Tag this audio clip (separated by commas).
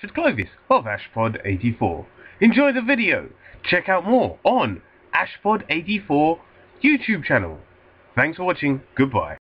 Speech